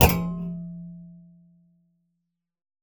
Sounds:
thud

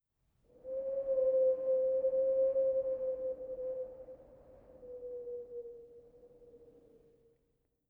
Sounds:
wind

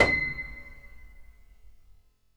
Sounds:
piano
music
musical instrument
keyboard (musical)

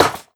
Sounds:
mechanisms

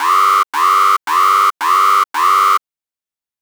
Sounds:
alarm

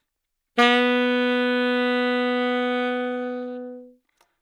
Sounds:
woodwind instrument
music
musical instrument

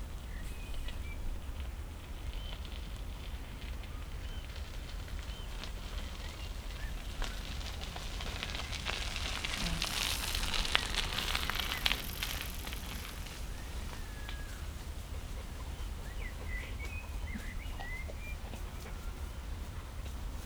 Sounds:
bicycle
vehicle

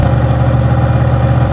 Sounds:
truck
vehicle
engine
motor vehicle (road)
car

